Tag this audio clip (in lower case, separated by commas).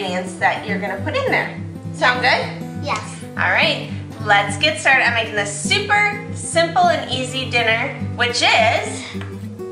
music, speech